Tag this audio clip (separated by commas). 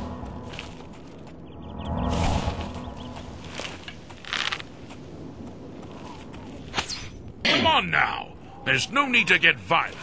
Speech